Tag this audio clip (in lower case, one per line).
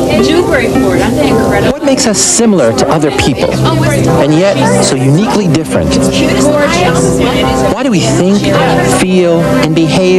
speech
music